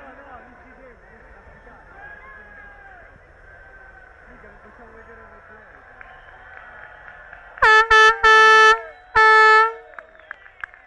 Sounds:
outside, urban or man-made, Speech, Vehicle

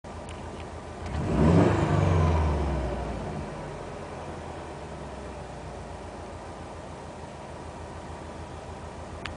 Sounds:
Accelerating, Vehicle

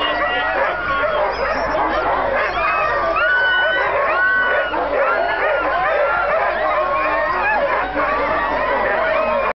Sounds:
Domestic animals, Dog, Speech, Animal

